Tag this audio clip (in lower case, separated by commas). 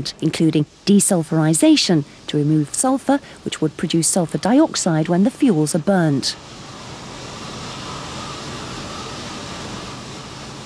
speech